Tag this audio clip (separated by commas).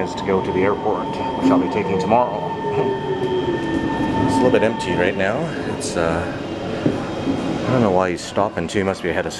Speech